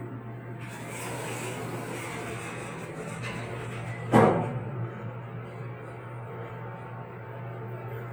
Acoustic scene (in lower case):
elevator